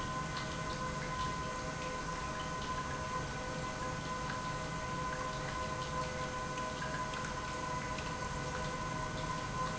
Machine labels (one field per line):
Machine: pump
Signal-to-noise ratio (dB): -6 dB